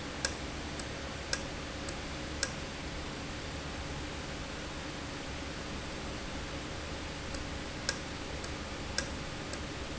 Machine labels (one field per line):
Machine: valve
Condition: normal